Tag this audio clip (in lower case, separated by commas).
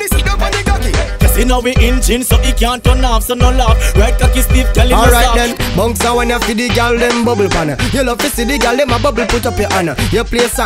music, speech